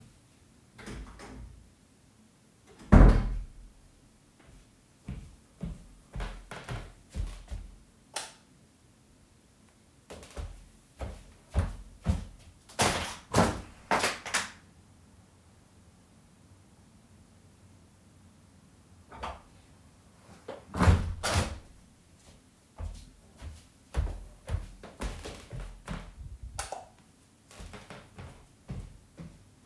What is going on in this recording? I came in the room turnted on the light and opend the window closed it and then turned off the light before leaving the room.